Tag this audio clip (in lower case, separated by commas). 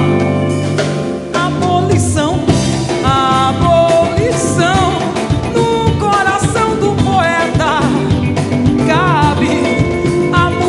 musical instrument, singing, afrobeat, music, music of africa